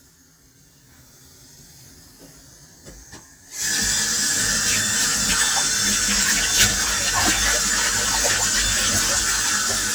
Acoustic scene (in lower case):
kitchen